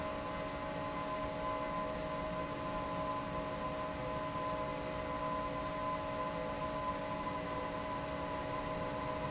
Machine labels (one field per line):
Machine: fan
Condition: normal